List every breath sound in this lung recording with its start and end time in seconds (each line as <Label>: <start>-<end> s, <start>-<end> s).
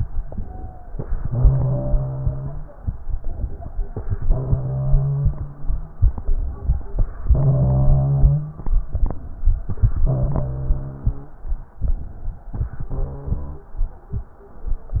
Inhalation: 0.20-0.83 s, 3.25-3.90 s, 5.96-7.03 s, 9.07-9.66 s, 11.88-12.53 s
Exhalation: 1.23-2.62 s, 4.37-5.66 s, 7.26-8.51 s, 10.07-11.22 s, 12.62-13.60 s
Wheeze: 0.41-0.91 s, 1.32-2.66 s, 4.36-5.59 s, 7.31-8.54 s, 10.17-11.41 s, 12.95-13.72 s